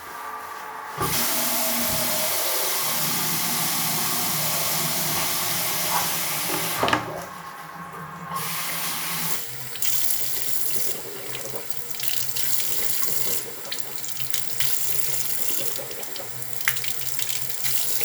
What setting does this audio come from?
restroom